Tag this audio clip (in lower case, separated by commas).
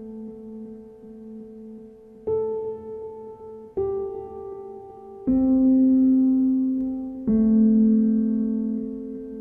music